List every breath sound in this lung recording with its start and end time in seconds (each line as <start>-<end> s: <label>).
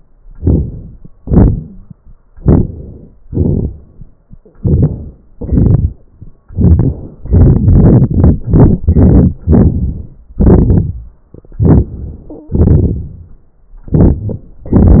0.38-1.22 s: inhalation
1.18-2.01 s: exhalation
2.33-3.16 s: inhalation
3.15-4.21 s: exhalation
4.57-5.28 s: inhalation
11.38-12.27 s: inhalation
12.52-13.41 s: exhalation